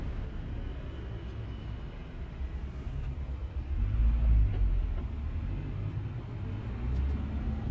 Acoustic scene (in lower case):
car